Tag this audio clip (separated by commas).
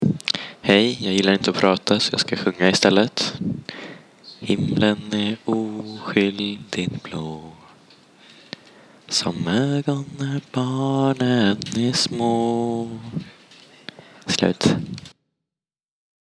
Human voice, Singing